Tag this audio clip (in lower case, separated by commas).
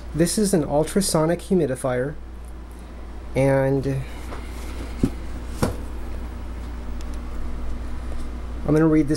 speech